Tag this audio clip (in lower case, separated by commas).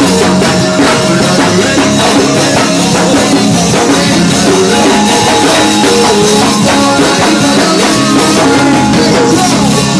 music